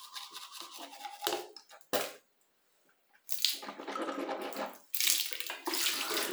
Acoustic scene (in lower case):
restroom